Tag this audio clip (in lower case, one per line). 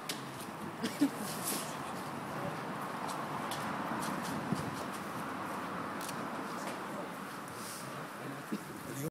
speech